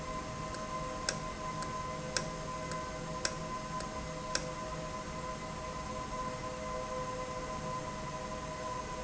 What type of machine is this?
valve